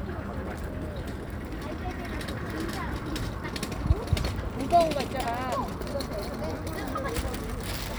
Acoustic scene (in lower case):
park